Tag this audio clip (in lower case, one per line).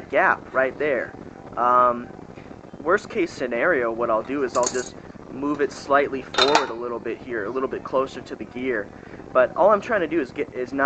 speech